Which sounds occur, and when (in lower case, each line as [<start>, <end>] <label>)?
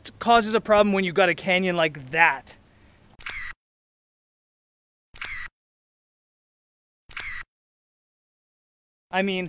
[0.00, 2.55] male speech
[0.00, 3.12] wind
[2.65, 2.99] breathing
[3.16, 3.50] single-lens reflex camera
[5.11, 5.46] single-lens reflex camera
[7.06, 7.41] single-lens reflex camera
[9.07, 9.45] male speech